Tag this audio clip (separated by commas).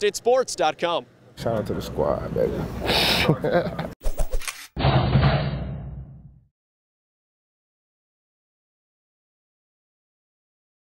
Speech, outside, rural or natural, Music